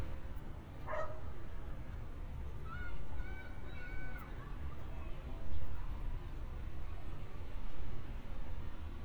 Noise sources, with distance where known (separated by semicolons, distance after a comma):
person or small group shouting, far; dog barking or whining, near